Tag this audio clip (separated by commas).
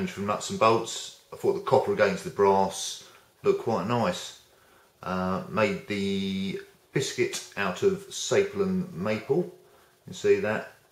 Speech